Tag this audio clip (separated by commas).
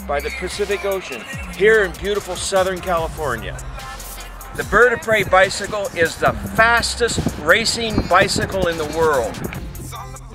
Music, Speech